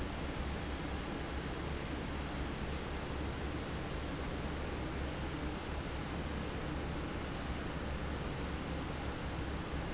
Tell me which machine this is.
fan